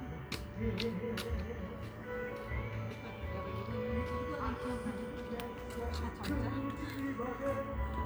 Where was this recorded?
in a park